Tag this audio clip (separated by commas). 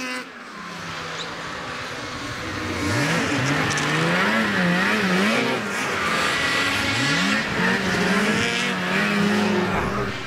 driving snowmobile